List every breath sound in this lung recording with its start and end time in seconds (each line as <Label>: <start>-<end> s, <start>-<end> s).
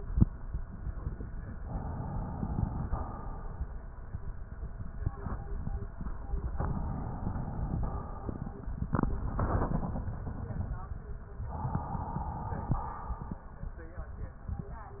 Inhalation: 1.57-2.83 s, 6.58-7.89 s, 11.50-12.81 s
Exhalation: 2.83-3.83 s, 7.89-8.90 s, 12.81-13.83 s